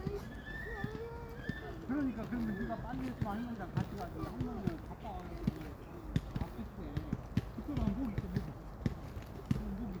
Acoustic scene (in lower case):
park